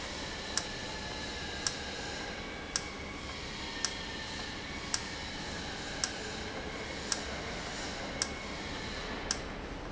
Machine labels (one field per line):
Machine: valve